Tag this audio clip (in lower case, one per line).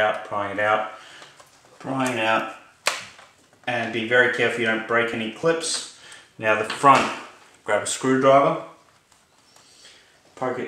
speech
inside a small room